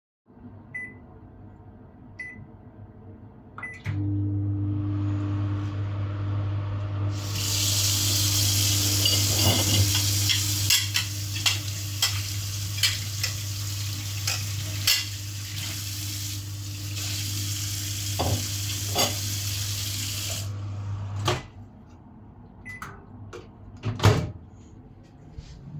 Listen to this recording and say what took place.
I set the microwave for 10 seconds. While the microwave was running I turned the water on, washed a dish, then put it on the table. I turned the water off and opened the microwave. Then I finally closed it.